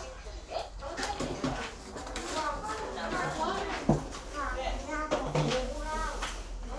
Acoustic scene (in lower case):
crowded indoor space